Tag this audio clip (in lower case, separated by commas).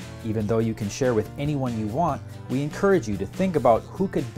music, speech